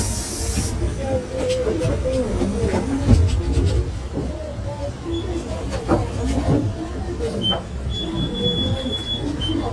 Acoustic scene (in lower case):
bus